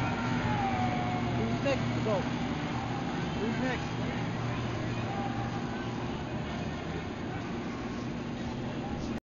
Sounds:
speech

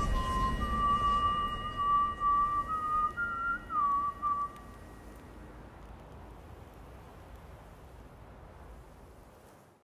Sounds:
whistling
music

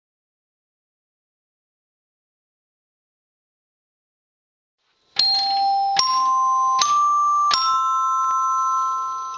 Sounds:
chime

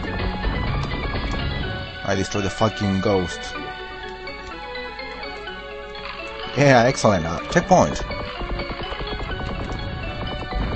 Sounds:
music
speech

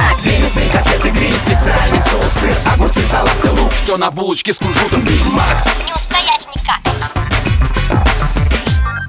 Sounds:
music

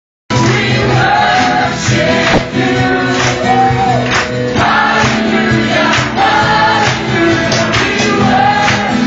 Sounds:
singing
music

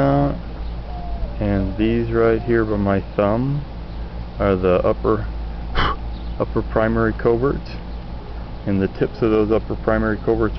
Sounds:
speech
animal
bird

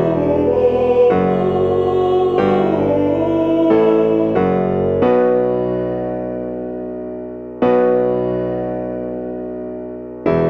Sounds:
tender music
music

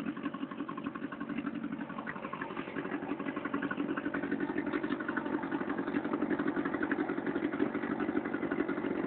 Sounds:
idling
engine
vehicle

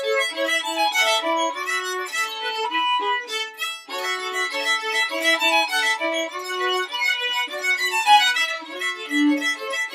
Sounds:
playing violin
musical instrument
fiddle
music

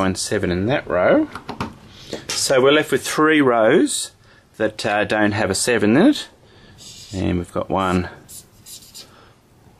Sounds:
inside a small room
speech

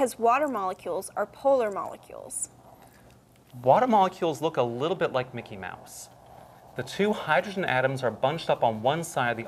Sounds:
speech

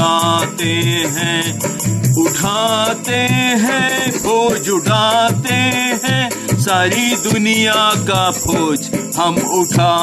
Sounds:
folk music
music

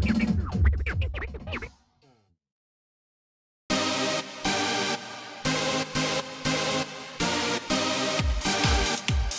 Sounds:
soundtrack music
music

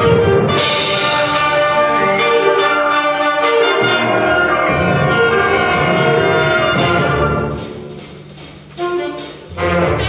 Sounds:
classical music
music
musical instrument
orchestra

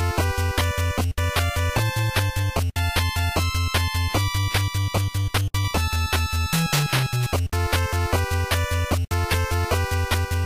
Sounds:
video game music
music

